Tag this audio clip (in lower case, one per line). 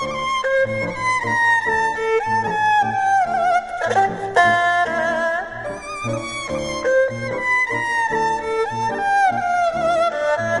playing erhu